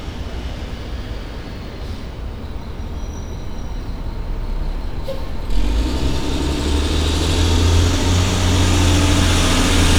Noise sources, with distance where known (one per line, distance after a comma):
large-sounding engine, near